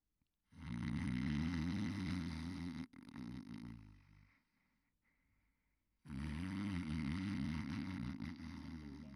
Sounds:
Respiratory sounds, Breathing

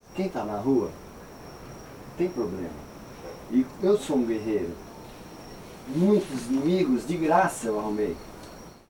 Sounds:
Human voice, Speech, Male speech

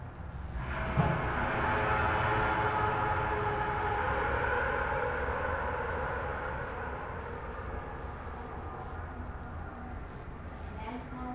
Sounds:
Motor vehicle (road), Car, Vehicle, Race car

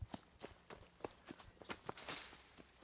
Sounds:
Run

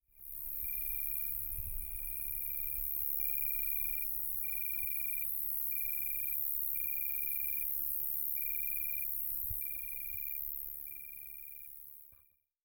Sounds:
Wild animals, Cricket, Animal, Insect

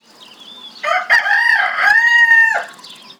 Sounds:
Animal, rooster, livestock, Fowl

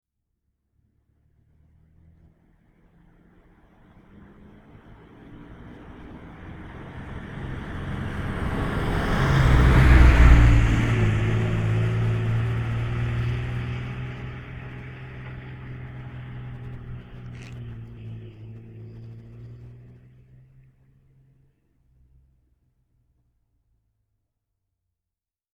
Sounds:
Motor vehicle (road), Vehicle, Truck

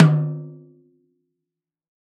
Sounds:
Snare drum, Percussion, Musical instrument, Drum, Music

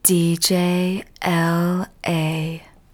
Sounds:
Human voice, Speech, woman speaking

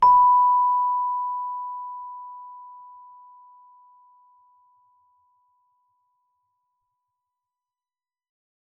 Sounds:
Keyboard (musical), Musical instrument, Music

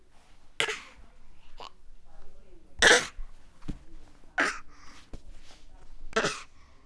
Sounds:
Human voice

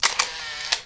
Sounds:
Camera, Mechanisms

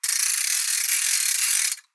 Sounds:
Mechanisms, pawl, Percussion, Musical instrument, Music

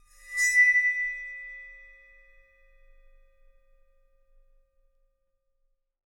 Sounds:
Music, Cymbal, Percussion, Musical instrument

